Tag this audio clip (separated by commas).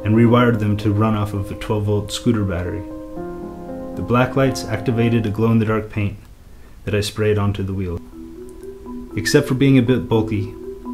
Speech, Music